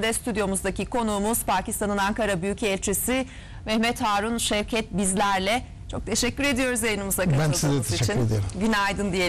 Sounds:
Speech

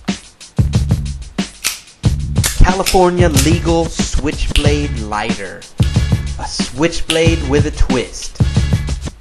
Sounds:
Music, Speech

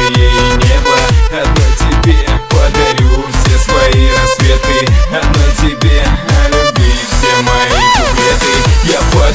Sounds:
Music

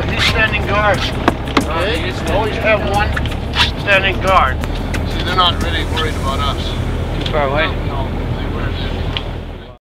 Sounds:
Speech, Music

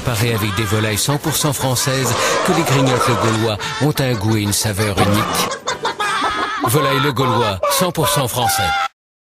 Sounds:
Music, Speech

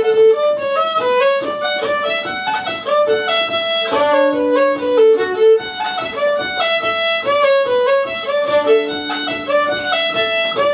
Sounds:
Musical instrument, fiddle, Music

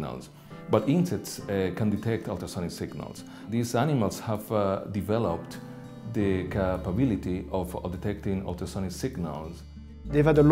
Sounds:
Music, Speech

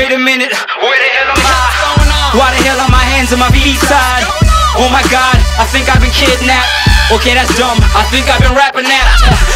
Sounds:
Music

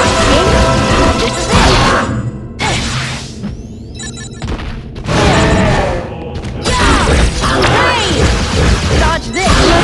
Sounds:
Speech, Music

